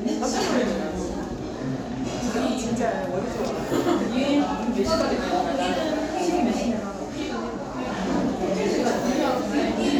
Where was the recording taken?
in a crowded indoor space